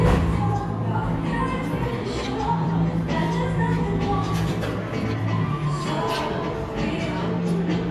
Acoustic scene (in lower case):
cafe